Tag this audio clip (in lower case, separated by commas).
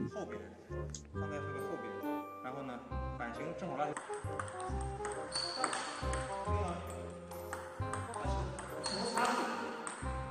playing table tennis